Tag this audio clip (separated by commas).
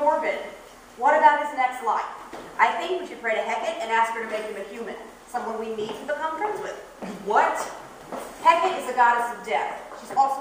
Speech